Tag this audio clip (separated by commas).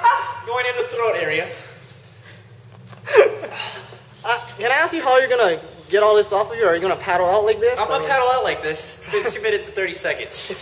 Speech